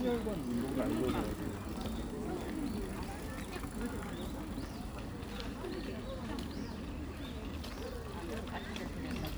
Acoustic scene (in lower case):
park